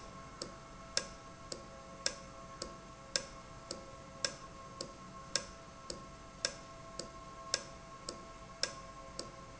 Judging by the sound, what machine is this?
valve